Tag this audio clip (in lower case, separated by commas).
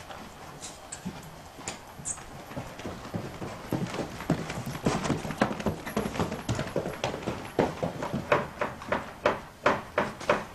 horse, animal, livestock